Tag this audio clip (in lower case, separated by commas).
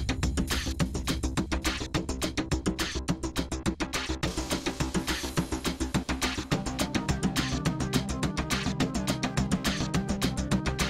music